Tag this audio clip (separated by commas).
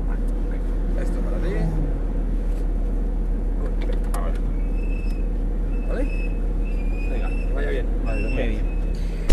Speech